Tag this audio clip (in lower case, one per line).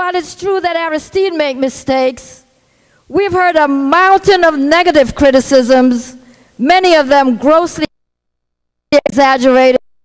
woman speaking
speech
monologue